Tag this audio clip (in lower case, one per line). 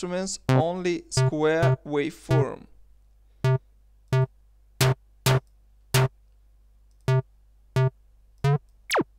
speech